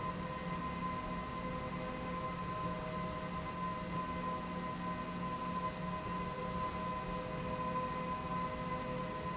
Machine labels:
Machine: slide rail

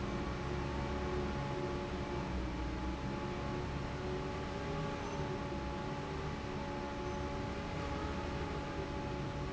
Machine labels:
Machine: fan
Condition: normal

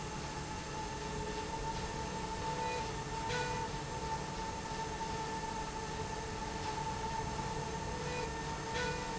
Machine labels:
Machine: slide rail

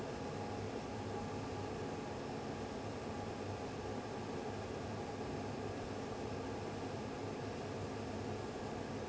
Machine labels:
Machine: fan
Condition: abnormal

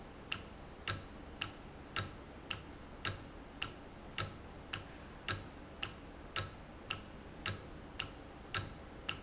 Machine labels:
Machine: valve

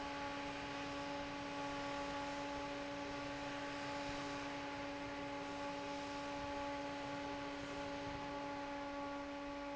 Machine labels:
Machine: fan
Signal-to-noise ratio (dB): 6 dB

